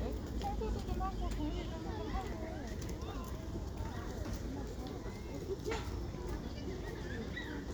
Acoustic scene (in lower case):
residential area